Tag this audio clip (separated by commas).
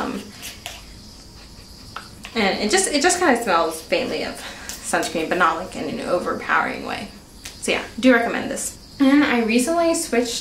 Speech